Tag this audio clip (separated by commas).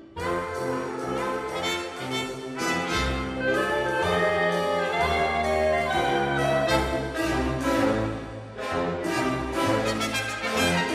Music